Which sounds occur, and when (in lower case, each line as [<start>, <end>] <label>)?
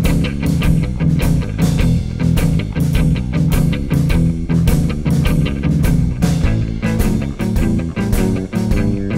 [0.00, 9.15] music